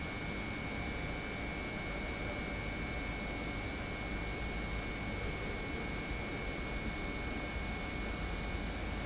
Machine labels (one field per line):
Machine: pump